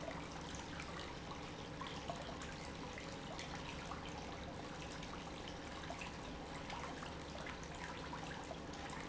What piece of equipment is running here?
pump